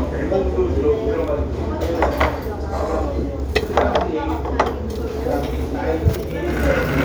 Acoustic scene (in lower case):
restaurant